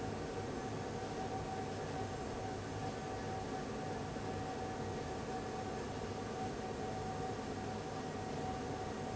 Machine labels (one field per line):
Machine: fan